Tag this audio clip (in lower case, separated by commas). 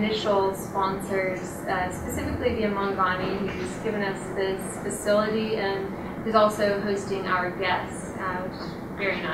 speech